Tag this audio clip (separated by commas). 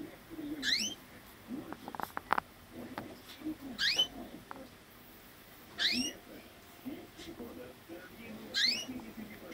canary calling